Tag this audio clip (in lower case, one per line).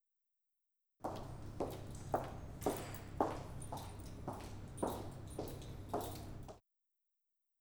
walk